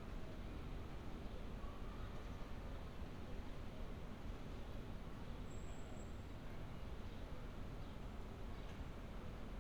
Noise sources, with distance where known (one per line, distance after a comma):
unidentified impact machinery